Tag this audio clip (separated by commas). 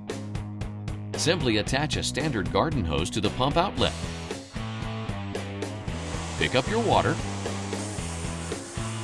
Music, Speech